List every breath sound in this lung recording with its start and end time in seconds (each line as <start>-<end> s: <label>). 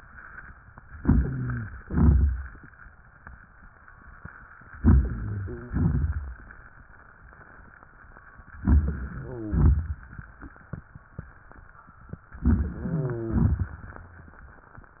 0.95-1.78 s: inhalation
0.95-1.78 s: rhonchi
1.84-2.66 s: exhalation
1.84-2.66 s: crackles
4.78-5.71 s: inhalation
4.78-5.71 s: rhonchi
5.73-6.55 s: exhalation
5.73-6.55 s: crackles
8.63-9.56 s: inhalation
8.63-9.56 s: rhonchi
9.56-10.38 s: exhalation
9.56-10.38 s: crackles
12.45-13.38 s: inhalation
12.45-13.38 s: rhonchi
13.38-13.98 s: exhalation
13.38-13.98 s: crackles